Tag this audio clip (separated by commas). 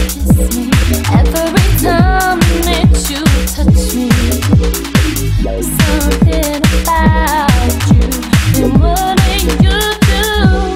Electronic music, Music, Trance music